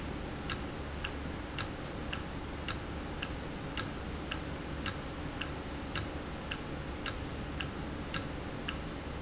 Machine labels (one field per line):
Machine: valve